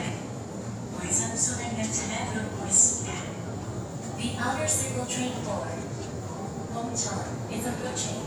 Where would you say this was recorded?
in a subway station